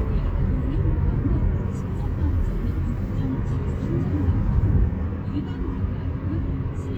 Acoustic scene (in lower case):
car